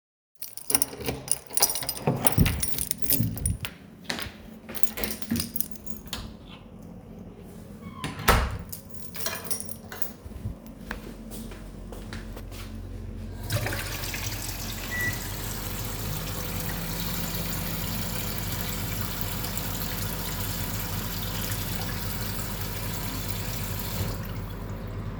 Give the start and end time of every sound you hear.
[0.14, 3.89] keys
[0.17, 3.89] door
[3.94, 4.55] footsteps
[4.51, 6.03] keys
[7.82, 10.31] door
[8.85, 9.96] keys
[10.15, 13.37] footsteps
[10.76, 25.19] running water
[14.78, 25.19] microwave

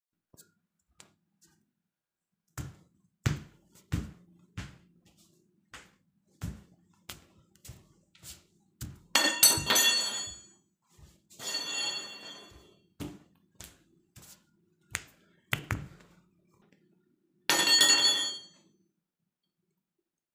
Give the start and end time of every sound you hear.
[2.22, 9.09] footsteps
[9.06, 10.65] cutlery and dishes
[11.27, 12.46] footsteps
[11.40, 12.93] cutlery and dishes
[12.83, 16.12] footsteps
[17.25, 18.81] cutlery and dishes

